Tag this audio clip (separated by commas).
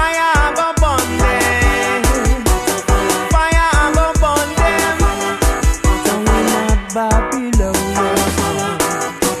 Music